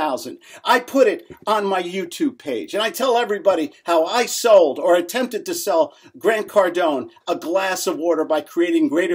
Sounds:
Speech

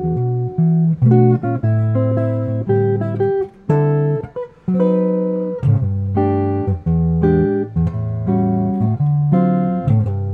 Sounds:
Musical instrument, Plucked string instrument, Guitar, Music, Strum

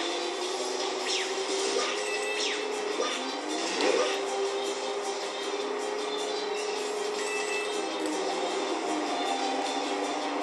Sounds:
Television

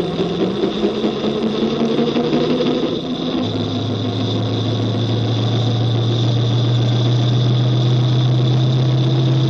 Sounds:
Car, Vehicle, auto racing, outside, rural or natural

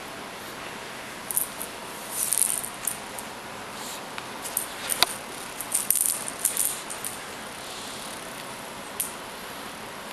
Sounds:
inside a small room

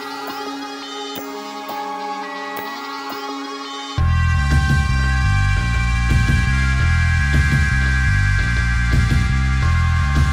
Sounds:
Music

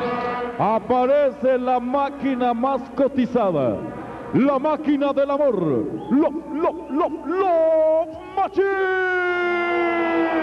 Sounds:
Speech

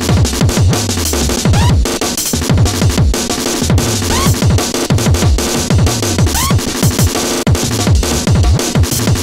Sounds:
Music

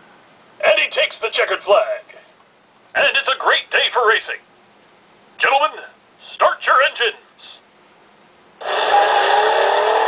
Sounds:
Speech

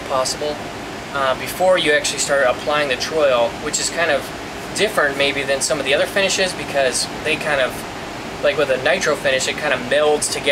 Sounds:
Speech

